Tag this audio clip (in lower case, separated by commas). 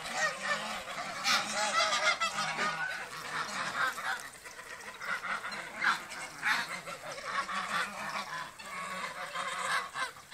goose honking, honk, goose, fowl